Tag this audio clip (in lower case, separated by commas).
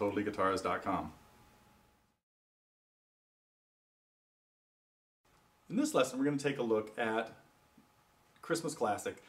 speech